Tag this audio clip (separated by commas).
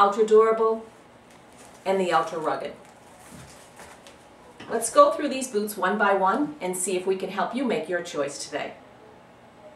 Speech